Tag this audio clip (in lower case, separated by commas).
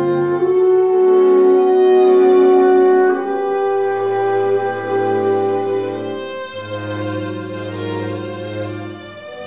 double bass, fiddle, bowed string instrument, cello